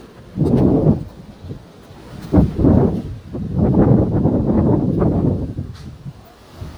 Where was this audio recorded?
in a residential area